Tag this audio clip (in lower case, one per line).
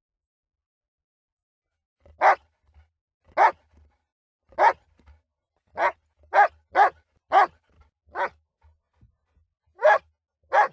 dog barking